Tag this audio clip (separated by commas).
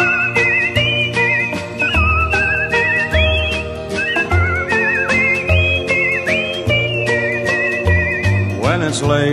Music, Funny music